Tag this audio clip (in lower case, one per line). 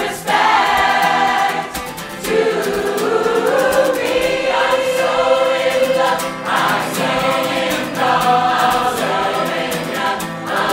singing choir